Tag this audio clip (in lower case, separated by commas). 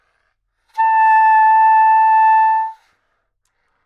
music, musical instrument, wind instrument